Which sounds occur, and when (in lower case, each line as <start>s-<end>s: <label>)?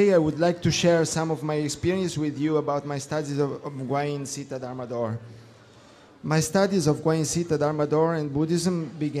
0.0s-5.2s: male speech
0.0s-9.2s: background noise
5.2s-6.3s: breathing
6.3s-9.2s: male speech